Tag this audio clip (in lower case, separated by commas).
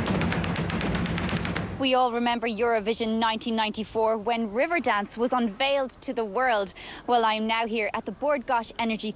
speech